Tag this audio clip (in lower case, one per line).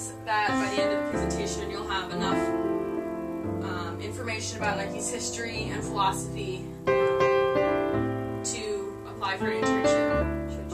speech
female speech
narration
music